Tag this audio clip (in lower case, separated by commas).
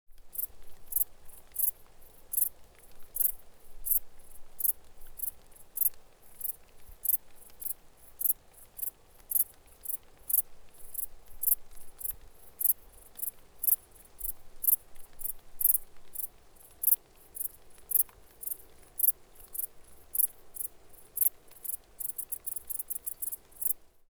wild animals, animal, insect